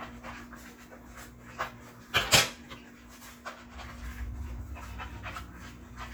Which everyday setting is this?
kitchen